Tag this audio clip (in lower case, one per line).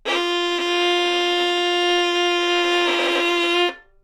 bowed string instrument
musical instrument
music